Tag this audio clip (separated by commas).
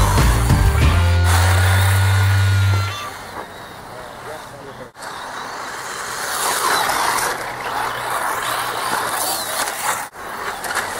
Music, Speech